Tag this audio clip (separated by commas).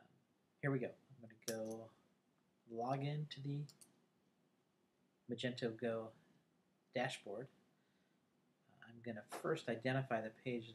Speech